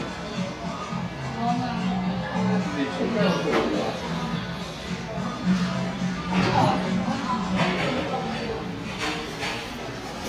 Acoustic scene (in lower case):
cafe